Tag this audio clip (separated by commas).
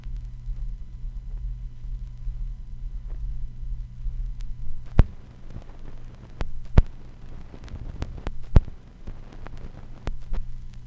Crackle